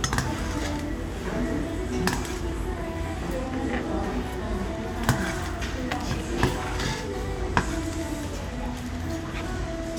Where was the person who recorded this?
in a restaurant